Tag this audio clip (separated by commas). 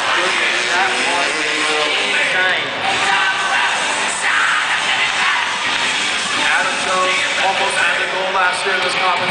Speech, Music